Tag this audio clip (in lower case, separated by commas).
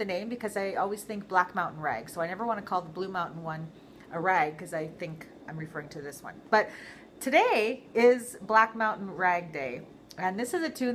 speech